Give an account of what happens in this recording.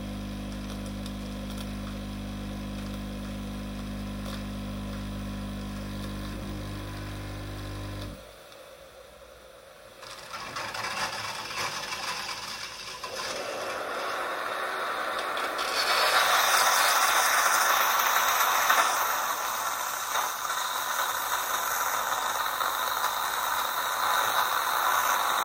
The coffee machine was actively working and making coffee. No other actions were performed during the entire recording.